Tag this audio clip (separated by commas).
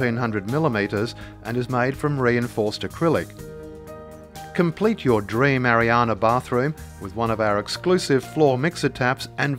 Narration